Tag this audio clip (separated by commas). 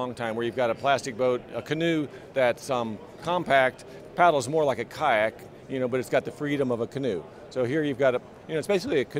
Speech